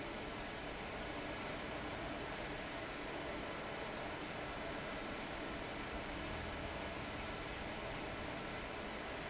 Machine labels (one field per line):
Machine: fan